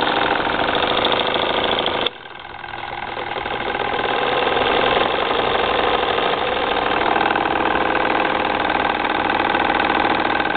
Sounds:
engine

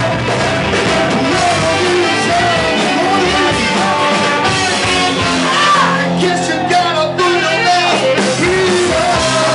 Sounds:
blues
music

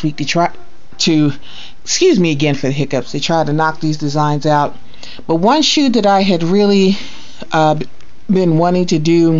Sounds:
speech

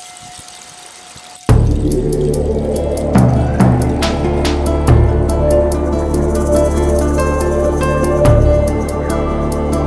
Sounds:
music

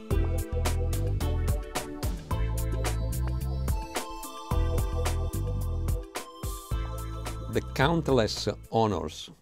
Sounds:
speech
music

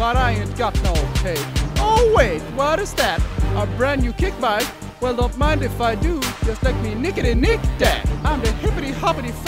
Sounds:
background music
music

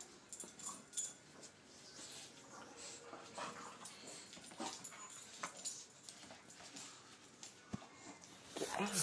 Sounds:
dog whimpering

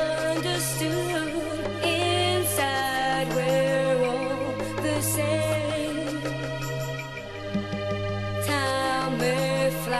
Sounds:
music

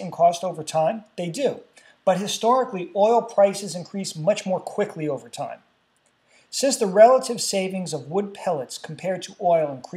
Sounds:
speech

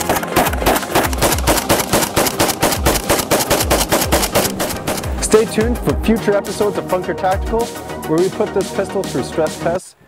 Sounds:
music
speech
machine gun

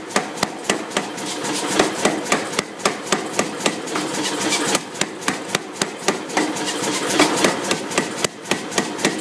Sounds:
tools

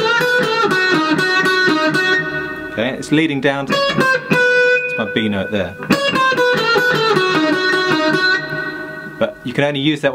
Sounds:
music
guitar
musical instrument
tapping (guitar technique)
plucked string instrument

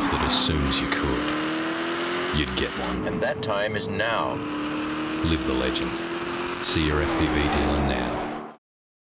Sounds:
speech

